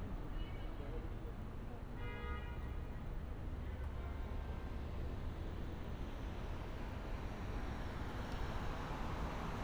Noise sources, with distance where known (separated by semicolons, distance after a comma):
medium-sounding engine; car horn